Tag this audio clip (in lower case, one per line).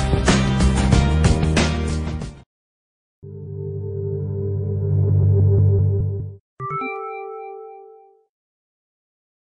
music